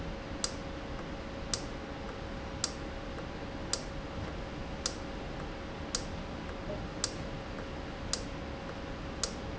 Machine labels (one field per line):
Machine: valve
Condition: normal